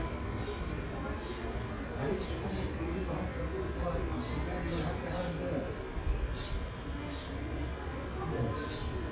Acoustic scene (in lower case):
residential area